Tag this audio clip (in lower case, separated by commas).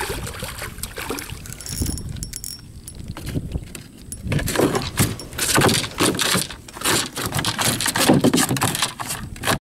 kayak rowing, vehicle, rowboat, sailboat, water vehicle